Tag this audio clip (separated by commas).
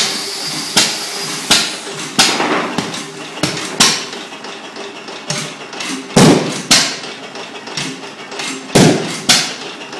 Engine